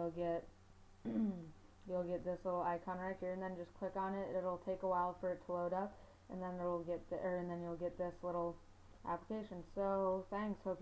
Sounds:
speech

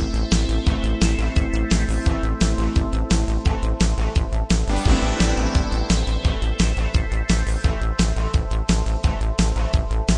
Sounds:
rhythm and blues, music

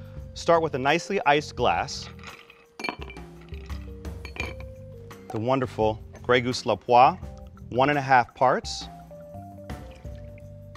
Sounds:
speech, music

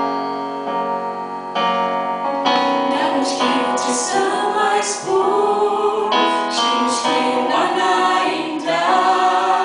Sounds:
singing, choir, gospel music, music

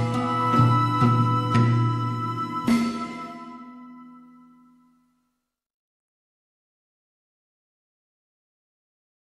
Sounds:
soundtrack music, music

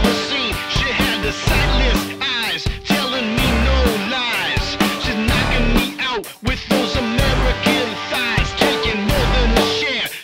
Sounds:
music

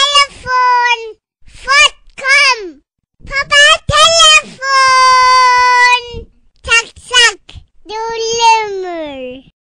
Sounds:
speech

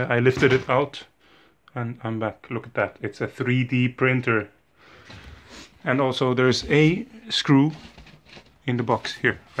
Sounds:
speech

